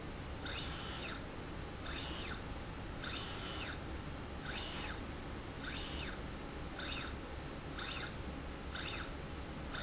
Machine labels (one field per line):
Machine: slide rail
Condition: normal